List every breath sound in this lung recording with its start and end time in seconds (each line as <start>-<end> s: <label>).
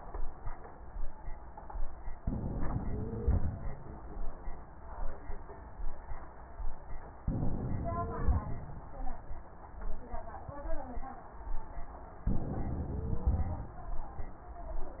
2.18-3.68 s: inhalation
2.18-3.68 s: wheeze
7.22-8.72 s: inhalation
7.22-8.72 s: wheeze
12.29-13.79 s: inhalation
12.92-13.79 s: wheeze